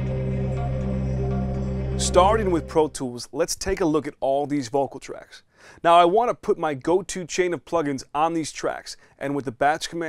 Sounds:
music, speech

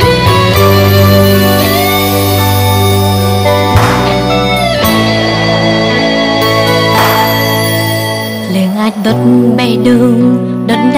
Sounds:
music

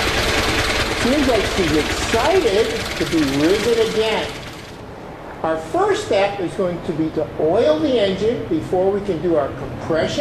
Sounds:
car, inside a large room or hall, speech, engine

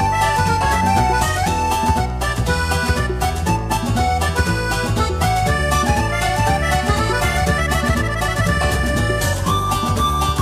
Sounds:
music

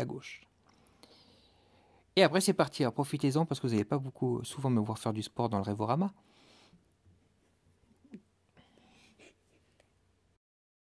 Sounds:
speech

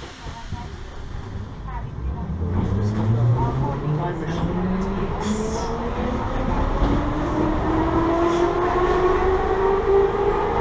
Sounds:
subway

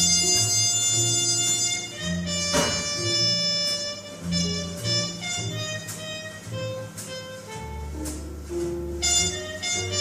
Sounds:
wind instrument

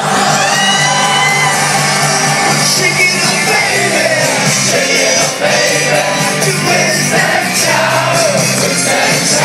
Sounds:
whoop, music

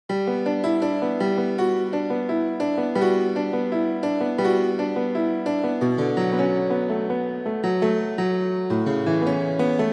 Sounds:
piano, electric piano, keyboard (musical)

